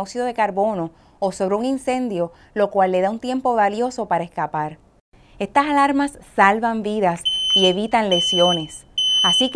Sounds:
speech, smoke detector

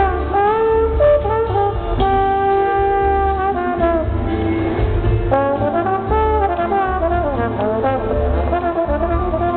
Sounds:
classical music, brass instrument, inside a public space, music, trombone, musical instrument

